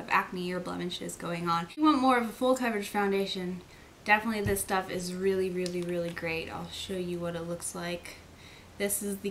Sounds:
Speech, inside a small room

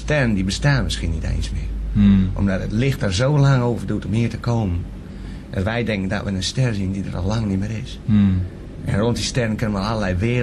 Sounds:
Speech

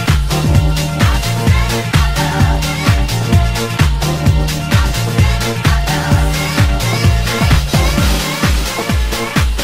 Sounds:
Music, Electronic music, House music

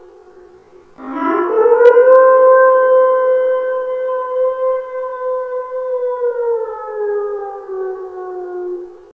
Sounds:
Siren

